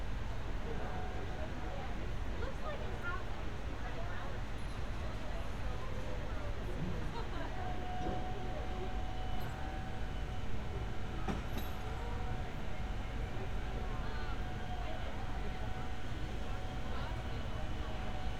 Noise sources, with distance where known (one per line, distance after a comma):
person or small group talking